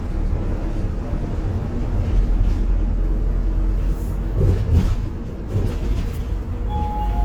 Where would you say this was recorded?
on a bus